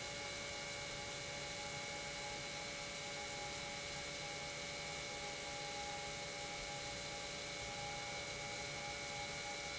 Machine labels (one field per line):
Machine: pump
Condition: normal